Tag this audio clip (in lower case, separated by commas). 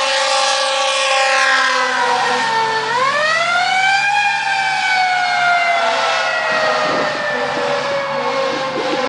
heavy engine (low frequency), vehicle